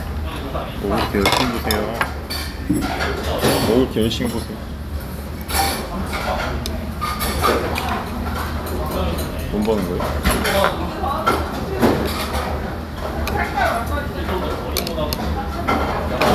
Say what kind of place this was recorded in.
restaurant